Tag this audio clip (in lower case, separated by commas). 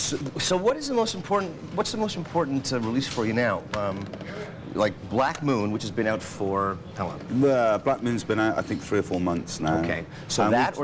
speech